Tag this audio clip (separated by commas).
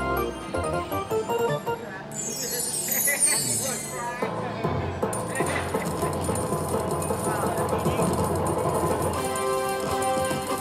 slot machine